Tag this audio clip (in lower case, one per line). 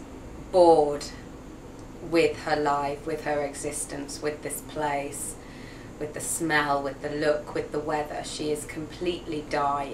speech